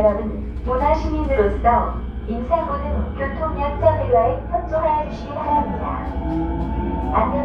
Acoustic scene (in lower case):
subway train